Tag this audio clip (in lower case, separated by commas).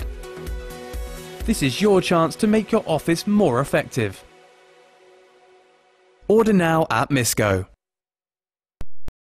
speech, music